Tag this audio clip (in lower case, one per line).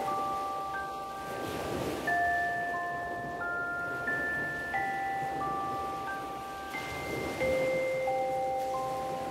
marimba
glockenspiel
chime
mallet percussion